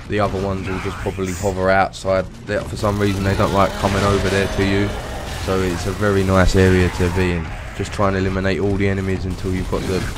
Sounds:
Speech

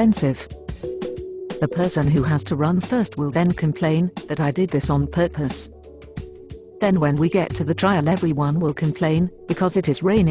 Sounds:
Speech, Music

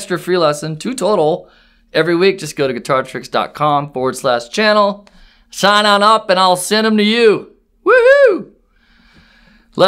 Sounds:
Speech

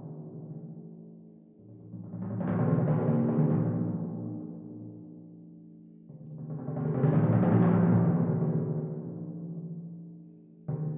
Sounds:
Timpani, Music

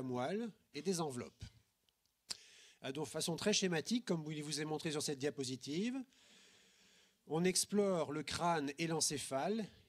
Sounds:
Speech

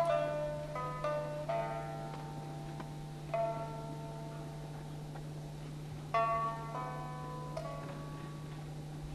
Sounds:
Music

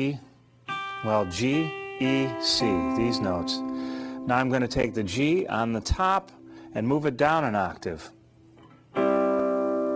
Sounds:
Speech, Strum, Plucked string instrument, Music, Guitar, Musical instrument

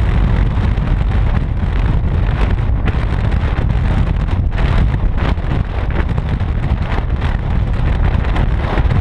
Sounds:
Vehicle

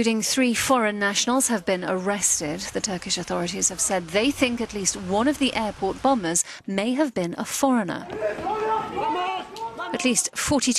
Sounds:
Speech

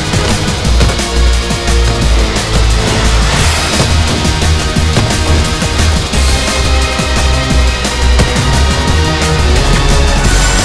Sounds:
Music

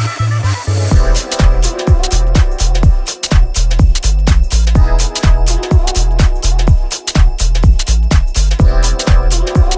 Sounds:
Exciting music, Music

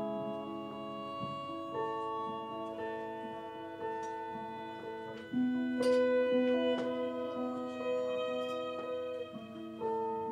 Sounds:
Music, Musical instrument, fiddle

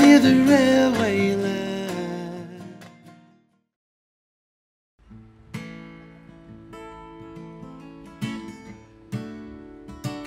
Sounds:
Music

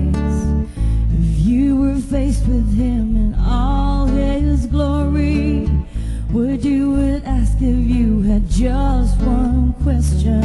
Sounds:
Acoustic guitar, Strum, Musical instrument, Plucked string instrument, Guitar, Music

